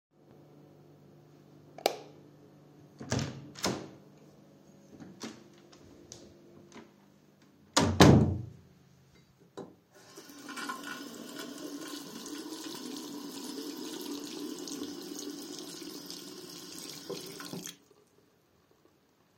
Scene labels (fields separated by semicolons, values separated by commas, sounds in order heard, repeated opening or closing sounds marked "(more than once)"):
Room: bathroom; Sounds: light switch, door (more than once), running water